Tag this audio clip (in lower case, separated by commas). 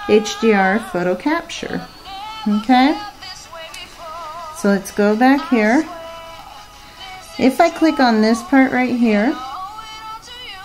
speech, music